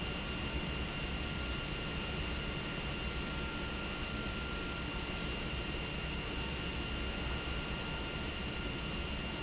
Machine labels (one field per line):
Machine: pump